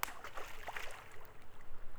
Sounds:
Splash, Liquid

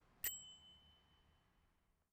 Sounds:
Bell

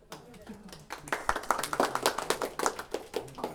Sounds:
Human group actions, Applause

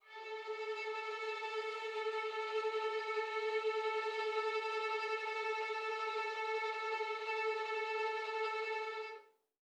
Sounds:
Music, Musical instrument, Bowed string instrument

